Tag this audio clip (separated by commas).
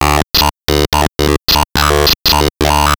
Speech synthesizer, Speech, Human voice